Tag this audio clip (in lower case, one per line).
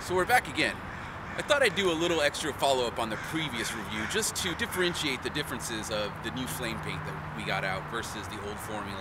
speech